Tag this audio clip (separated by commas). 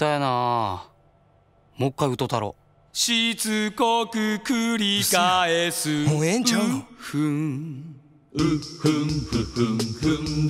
Speech, Music